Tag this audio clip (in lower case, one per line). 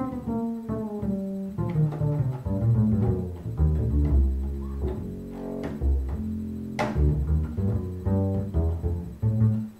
music
double bass
playing double bass